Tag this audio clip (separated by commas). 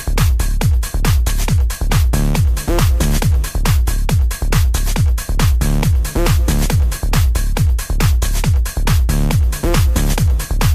Music